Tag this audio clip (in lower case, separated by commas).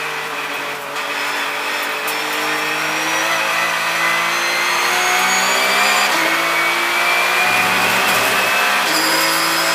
motor vehicle (road), car, vehicle, car passing by